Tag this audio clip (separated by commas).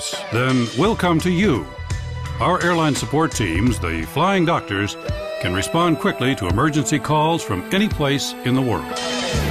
Music, Speech